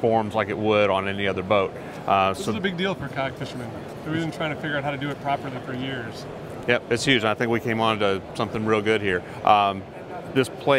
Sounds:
speech

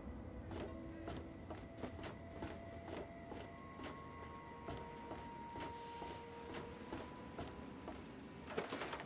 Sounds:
walk

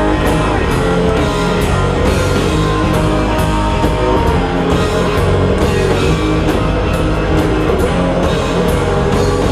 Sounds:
musical instrument
music
plucked string instrument
guitar

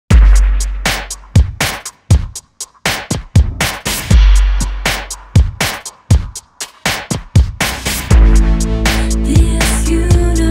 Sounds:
music
sampler

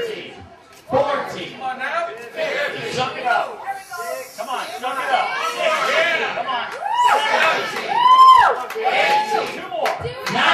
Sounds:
inside a public space
speech

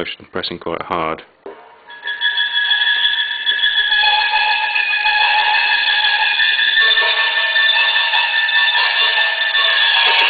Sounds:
speech

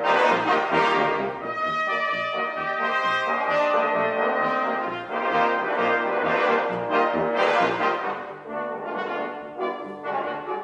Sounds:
music

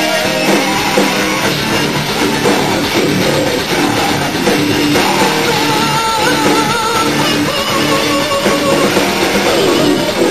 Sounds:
rock music
music
guitar
musical instrument
heavy metal

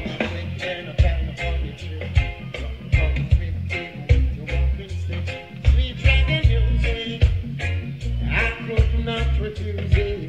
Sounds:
music

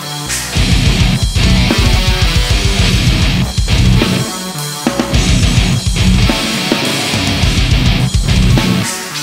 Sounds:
music
pop music

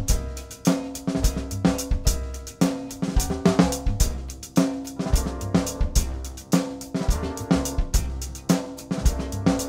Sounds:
bass drum
drum
snare drum
drum kit
rimshot
percussion

